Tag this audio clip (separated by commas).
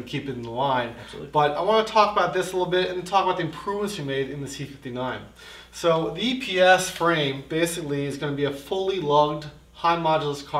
Speech